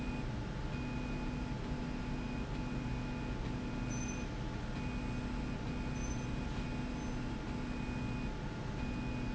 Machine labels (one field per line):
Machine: slide rail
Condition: normal